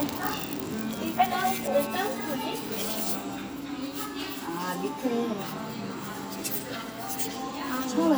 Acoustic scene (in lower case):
cafe